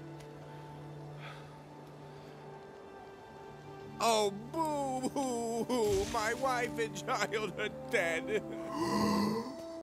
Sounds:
music
speech

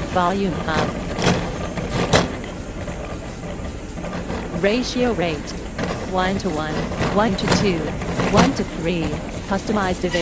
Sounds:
speech

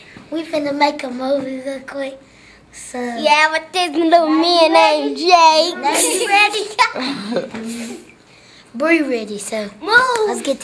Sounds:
chuckle

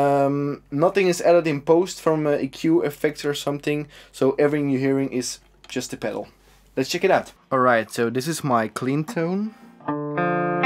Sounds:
music
speech

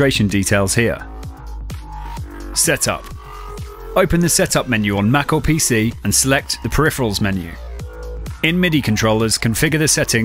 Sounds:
music
speech

